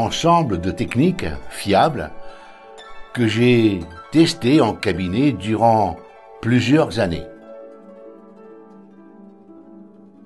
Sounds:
speech, music

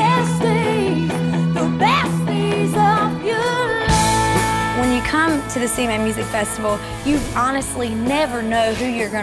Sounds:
speech, punk rock, music

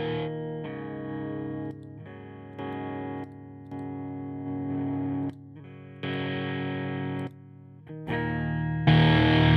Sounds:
plucked string instrument, musical instrument, guitar, music, distortion, effects unit

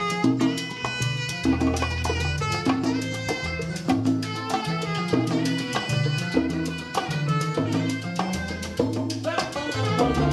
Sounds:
salsa music, music

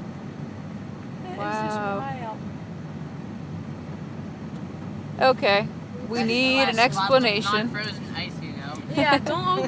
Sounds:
speech, waterfall

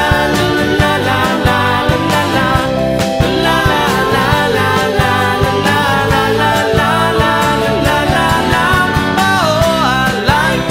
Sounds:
music, singing

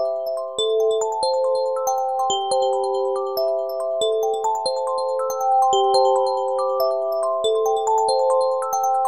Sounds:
music

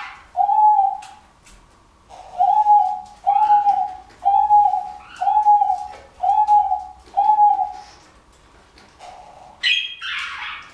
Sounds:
bird, bird call

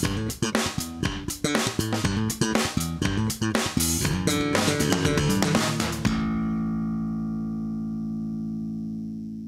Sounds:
strum, electric guitar, music, musical instrument, guitar, plucked string instrument

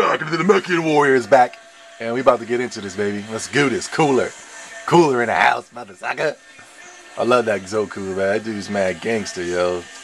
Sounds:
music, speech

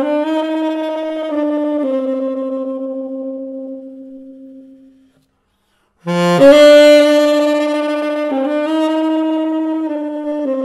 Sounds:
brass instrument, music, musical instrument, wind instrument, saxophone

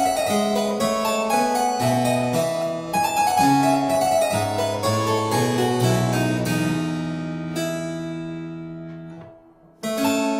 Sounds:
keyboard (musical), harpsichord, playing harpsichord

